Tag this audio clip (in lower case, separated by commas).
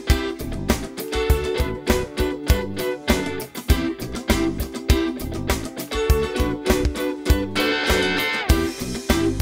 music, guitar, plucked string instrument, musical instrument